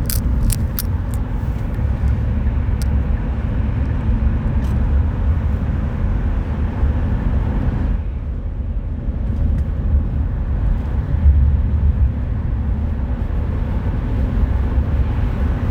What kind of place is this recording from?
car